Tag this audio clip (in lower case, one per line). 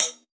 musical instrument
music
cymbal
percussion
hi-hat